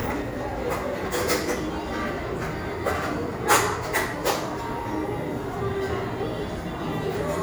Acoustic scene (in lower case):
cafe